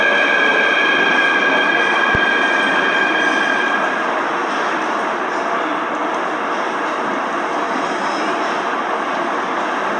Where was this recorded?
in a subway station